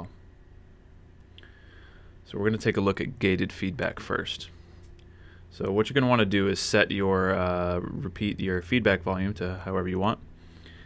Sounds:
Speech

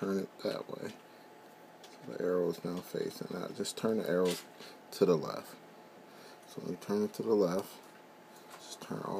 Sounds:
Speech

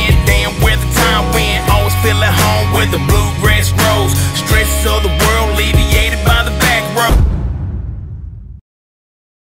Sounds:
Music, Rhythm and blues

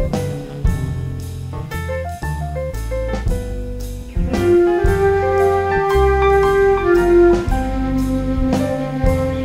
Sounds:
Music, Flute

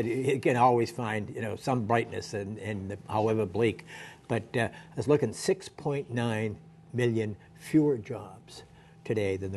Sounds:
Speech, Narration, man speaking

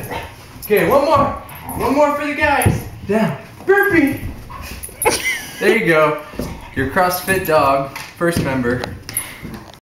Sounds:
Dog, Animal, pets, Speech

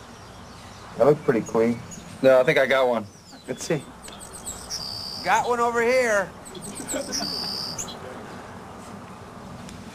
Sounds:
Speech

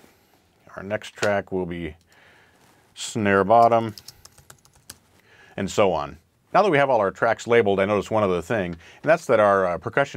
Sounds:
Computer keyboard, Speech

